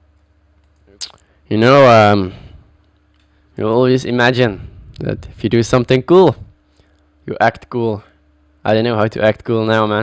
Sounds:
monologue, man speaking, speech

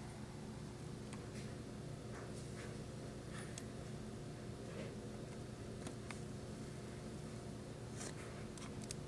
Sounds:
silence

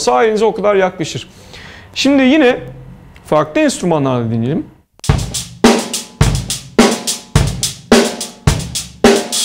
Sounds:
bass drum, drum, snare drum, percussion, hi-hat, rimshot, drum kit

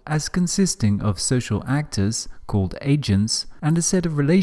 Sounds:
speech

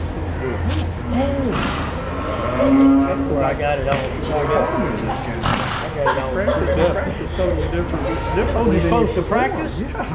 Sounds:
speech, animal

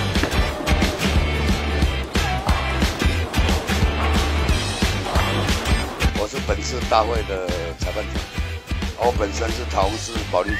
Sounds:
bowling impact

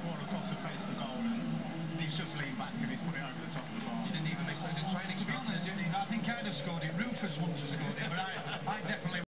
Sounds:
speech

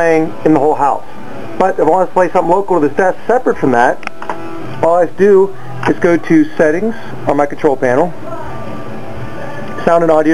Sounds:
music, sound effect, speech

